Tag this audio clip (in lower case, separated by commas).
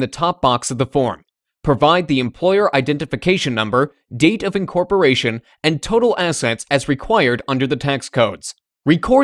speech